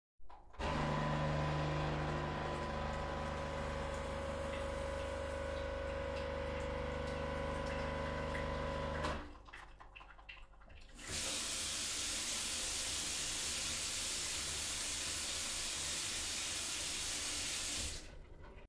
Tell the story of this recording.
I was making a cofee and washed some dishes